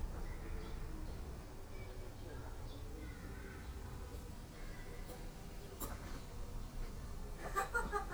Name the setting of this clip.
park